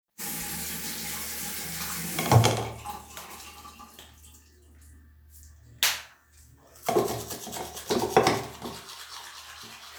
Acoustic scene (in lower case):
restroom